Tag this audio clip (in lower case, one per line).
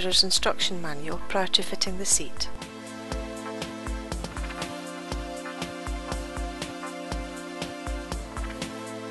music
speech